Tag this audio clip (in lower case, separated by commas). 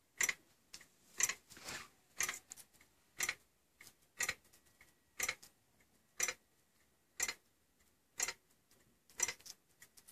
tick-tock